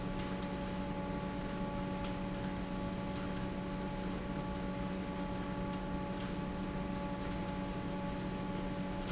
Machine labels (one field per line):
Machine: fan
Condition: normal